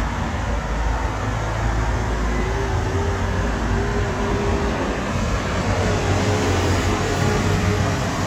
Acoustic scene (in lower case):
street